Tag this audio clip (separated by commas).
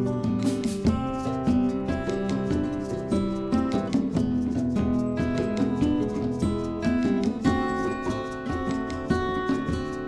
Music